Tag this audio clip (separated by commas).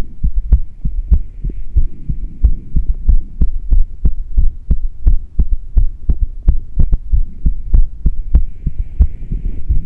Heart sounds, Throbbing